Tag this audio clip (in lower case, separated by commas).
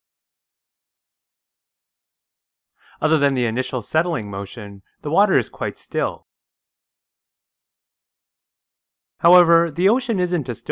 speech